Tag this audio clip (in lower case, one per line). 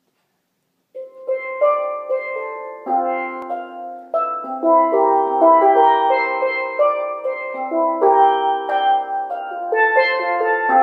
playing steelpan